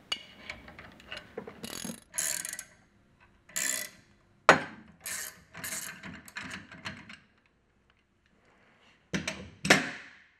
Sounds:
tools

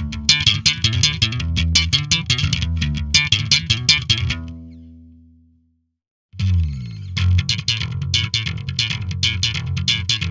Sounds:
music

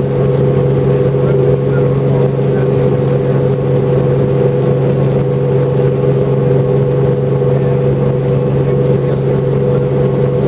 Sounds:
speech

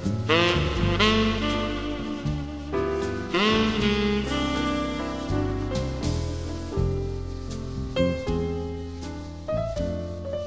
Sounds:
music
soundtrack music

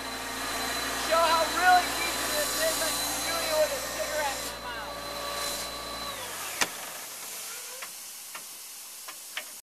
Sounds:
vacuum cleaner

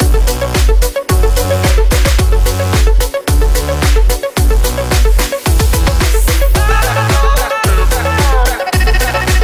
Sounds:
music

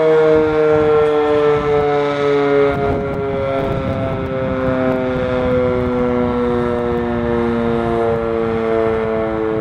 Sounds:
civil defense siren
siren

